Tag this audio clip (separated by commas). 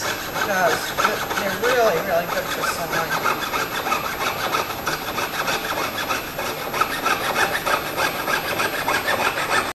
Wood, Rub, Sawing